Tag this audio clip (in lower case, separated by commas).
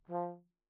music, brass instrument, musical instrument